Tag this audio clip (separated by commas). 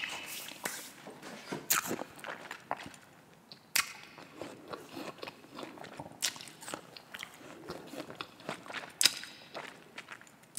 people eating apple